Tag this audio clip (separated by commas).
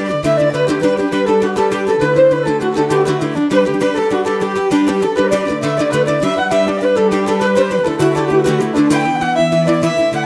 Music